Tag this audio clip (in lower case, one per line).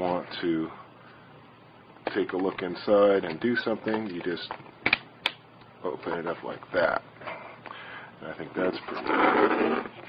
speech